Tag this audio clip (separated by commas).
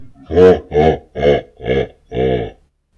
Human voice, Laughter